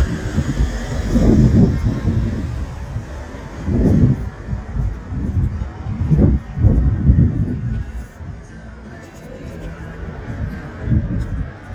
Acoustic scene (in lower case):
street